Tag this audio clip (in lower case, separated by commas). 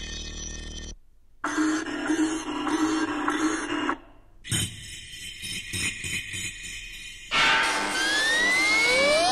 electronic music, music